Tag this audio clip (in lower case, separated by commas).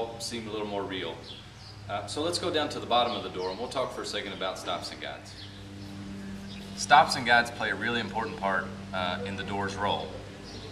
speech